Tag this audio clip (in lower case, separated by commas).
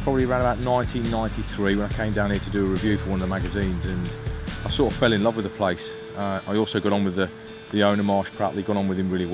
music, speech